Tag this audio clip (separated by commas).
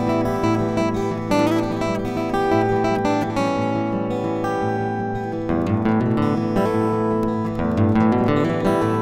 Bass guitar, Musical instrument, Guitar, Plucked string instrument, Acoustic guitar, Music, Strum, Electric guitar